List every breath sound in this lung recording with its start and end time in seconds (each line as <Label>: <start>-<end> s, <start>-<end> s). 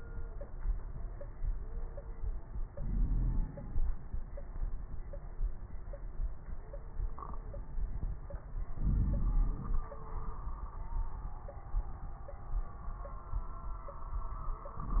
Inhalation: 2.72-3.50 s, 8.74-9.91 s
Exhalation: 3.48-4.12 s
Crackles: 2.72-3.50 s, 8.74-9.91 s